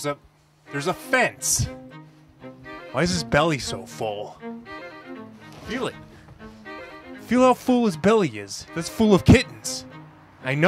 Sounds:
Music, Speech

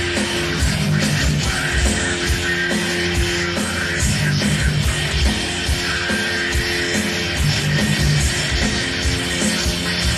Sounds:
Music

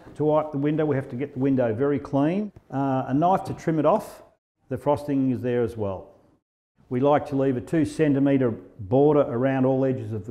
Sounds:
Speech

